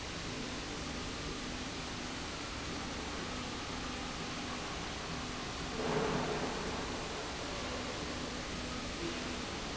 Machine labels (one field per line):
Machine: slide rail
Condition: normal